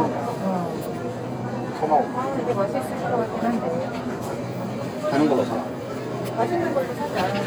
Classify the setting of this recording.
crowded indoor space